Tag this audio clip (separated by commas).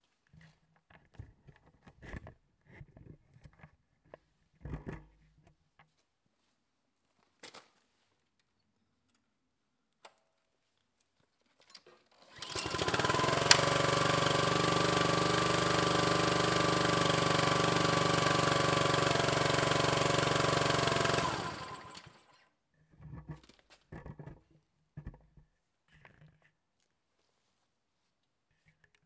Engine starting, Engine